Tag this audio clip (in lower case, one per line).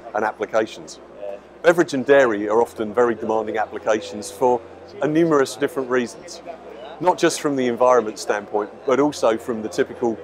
speech